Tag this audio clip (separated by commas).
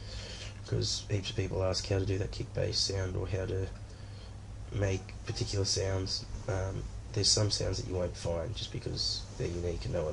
Speech